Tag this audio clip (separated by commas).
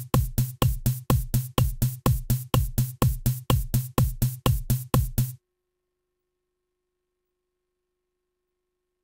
Musical instrument, Drum, Bass drum, Music, Drum kit